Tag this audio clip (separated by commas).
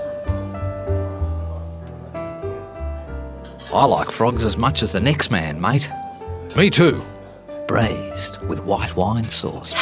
Speech, Music